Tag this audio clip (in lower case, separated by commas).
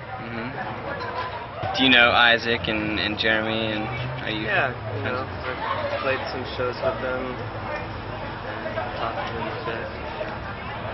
speech